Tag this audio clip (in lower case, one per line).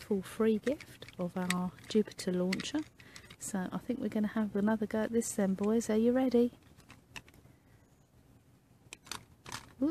speech